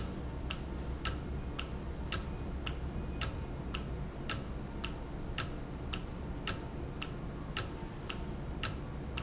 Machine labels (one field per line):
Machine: valve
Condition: normal